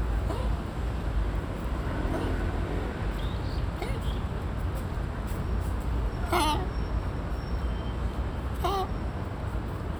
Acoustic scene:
park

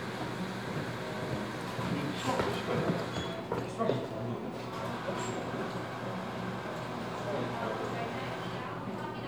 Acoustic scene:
cafe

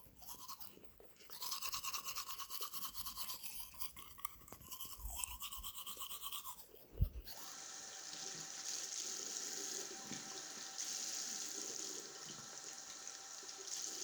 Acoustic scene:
restroom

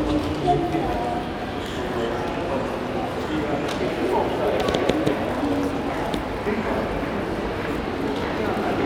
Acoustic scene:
crowded indoor space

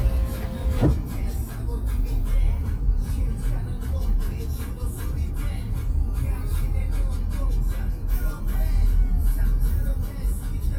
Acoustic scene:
car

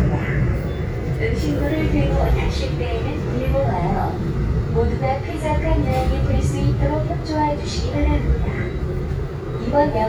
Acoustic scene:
subway train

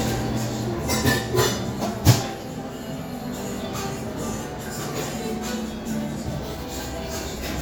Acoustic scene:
cafe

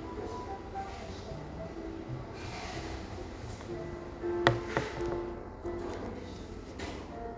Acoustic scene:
cafe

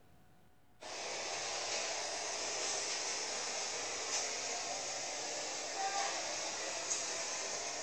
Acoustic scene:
street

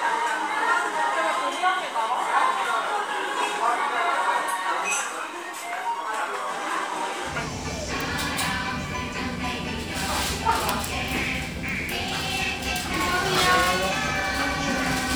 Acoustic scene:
restaurant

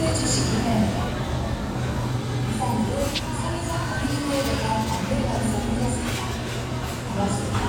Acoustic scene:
crowded indoor space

